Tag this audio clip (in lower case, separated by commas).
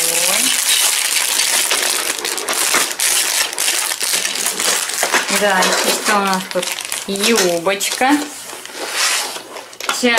speech